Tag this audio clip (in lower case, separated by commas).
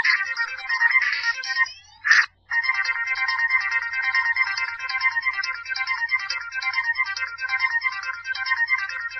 music, video game music